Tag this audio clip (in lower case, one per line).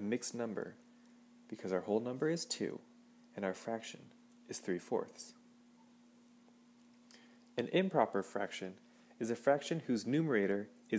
speech